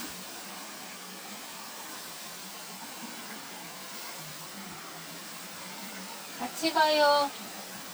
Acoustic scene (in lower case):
park